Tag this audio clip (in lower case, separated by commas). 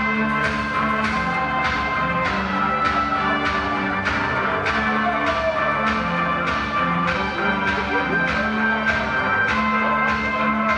music, sound effect